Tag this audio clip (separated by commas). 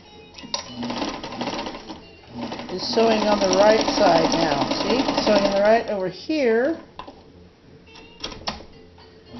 Sewing machine, Music, Speech